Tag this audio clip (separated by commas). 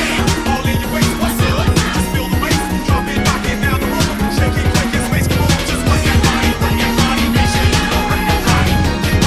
Music